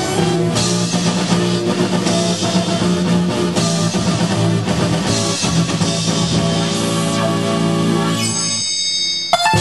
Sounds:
Synthesizer, Musical instrument, Music, Sound effect

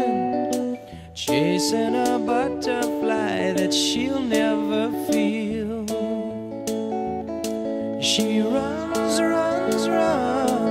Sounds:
Music

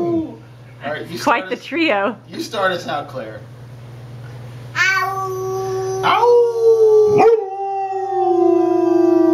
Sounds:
dog howling

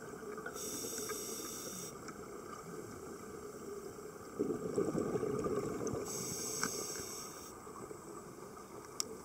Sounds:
scuba diving

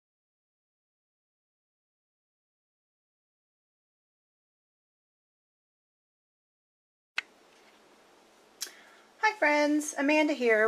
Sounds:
Silence, inside a small room, Speech

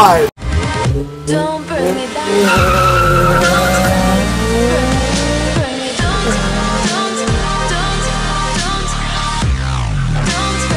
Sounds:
Car, Vehicle, Race car

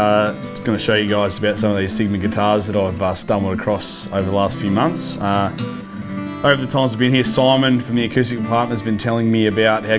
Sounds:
Speech, Plucked string instrument, Music

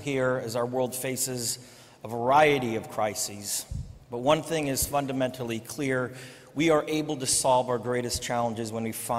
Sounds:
Male speech, monologue, Speech

